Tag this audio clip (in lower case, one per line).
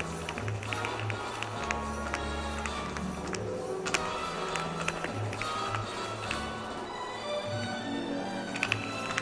tap dancing